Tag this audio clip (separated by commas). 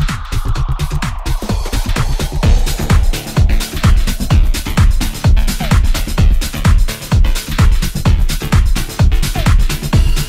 Techno, Music